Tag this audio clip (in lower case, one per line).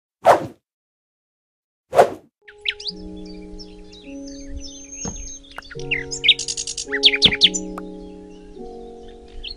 outside, rural or natural
music